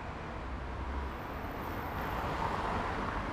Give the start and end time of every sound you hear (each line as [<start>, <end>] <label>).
[0.00, 3.33] bus
[0.00, 3.33] bus engine accelerating
[0.55, 3.33] car
[0.55, 3.33] car wheels rolling